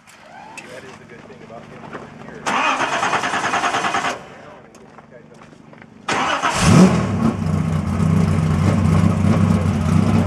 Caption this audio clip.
An engine starts up and runs, people speak